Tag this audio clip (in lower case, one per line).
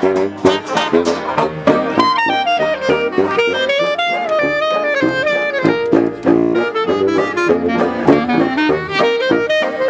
trombone
trumpet
brass instrument
jazz
musical instrument
music